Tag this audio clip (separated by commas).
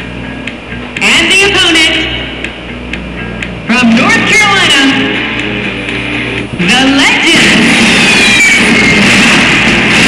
Music, Speech